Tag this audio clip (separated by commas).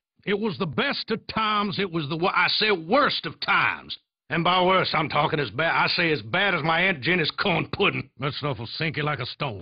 Speech